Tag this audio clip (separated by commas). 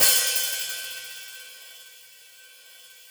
Percussion, Hi-hat, Musical instrument, Cymbal, Music